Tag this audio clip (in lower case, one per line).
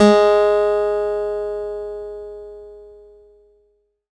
guitar
musical instrument
plucked string instrument
acoustic guitar
music